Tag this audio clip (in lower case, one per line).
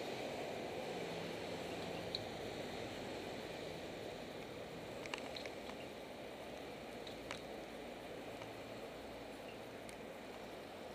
vehicle